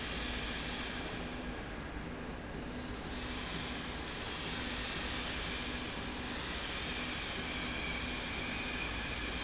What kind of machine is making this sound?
slide rail